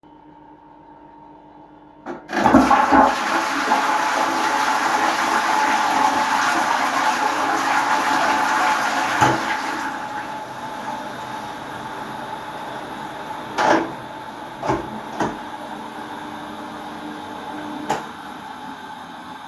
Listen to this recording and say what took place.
I flushed the toilet and then washed my hands using soap from the dispenser. After washing my hands, I dried them with a towel. Finally, I turned off the light, opened the toilet door, walked out, and closed the door again.